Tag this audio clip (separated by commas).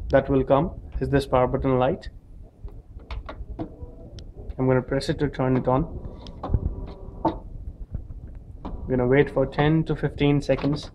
Speech